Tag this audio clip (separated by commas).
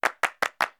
Clapping, Hands